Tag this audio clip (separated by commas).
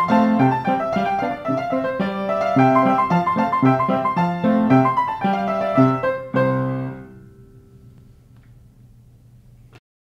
Music